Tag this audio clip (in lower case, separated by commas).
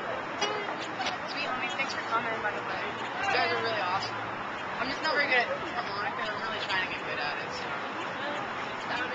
speech, music